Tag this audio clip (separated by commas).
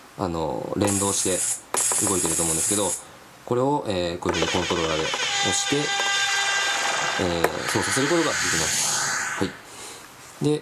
Music, Electronic music, Speech